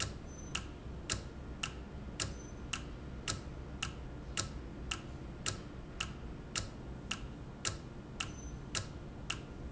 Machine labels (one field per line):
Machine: valve